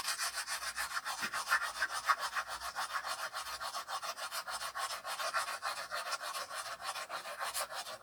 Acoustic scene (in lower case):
restroom